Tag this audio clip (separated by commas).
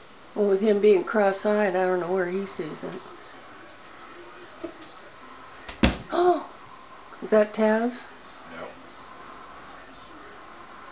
Speech